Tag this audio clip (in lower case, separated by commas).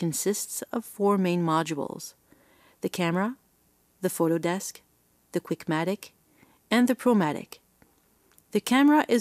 speech